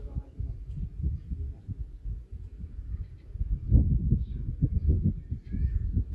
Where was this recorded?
in a park